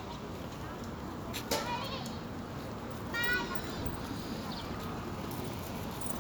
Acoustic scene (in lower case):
residential area